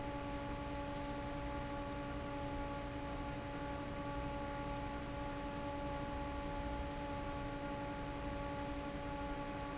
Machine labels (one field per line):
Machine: fan